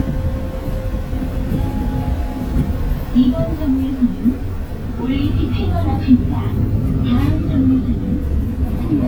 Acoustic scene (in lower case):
bus